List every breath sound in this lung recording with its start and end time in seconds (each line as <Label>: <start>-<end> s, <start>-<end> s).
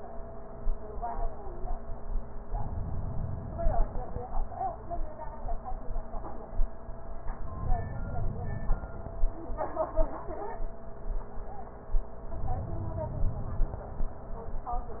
Inhalation: 2.46-4.13 s, 7.29-8.96 s, 12.26-13.93 s